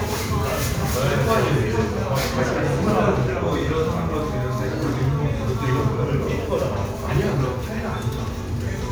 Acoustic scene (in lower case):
crowded indoor space